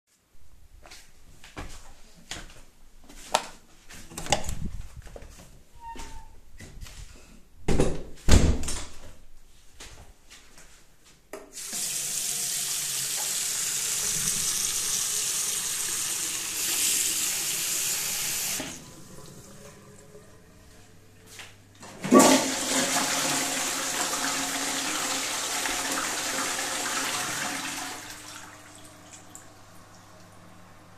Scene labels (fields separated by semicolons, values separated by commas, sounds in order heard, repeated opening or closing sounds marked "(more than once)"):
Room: bathroom; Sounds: footsteps, light switch, door (more than once), running water, toilet flushing